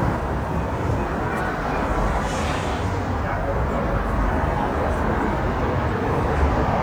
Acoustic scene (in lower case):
street